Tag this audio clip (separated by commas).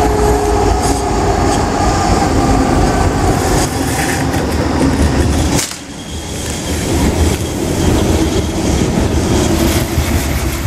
Rail transport, train wagon, Clickety-clack, Train